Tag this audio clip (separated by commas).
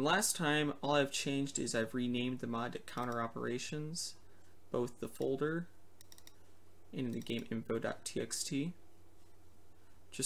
Speech